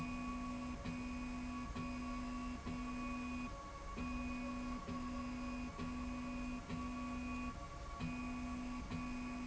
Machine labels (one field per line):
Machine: slide rail